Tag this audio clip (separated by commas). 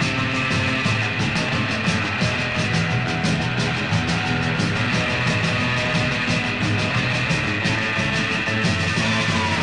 Music